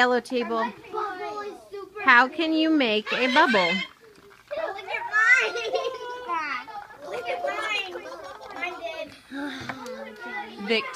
Voice of a teacher with kids chatting in the background with sounds of bubbles blown into a liquid container